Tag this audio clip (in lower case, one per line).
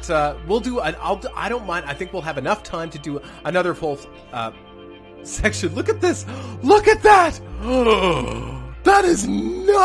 speech
music